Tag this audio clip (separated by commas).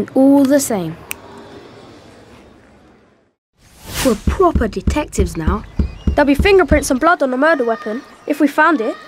Speech